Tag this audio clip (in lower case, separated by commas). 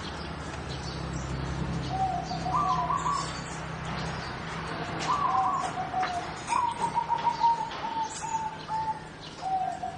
chirp, bird vocalization, bird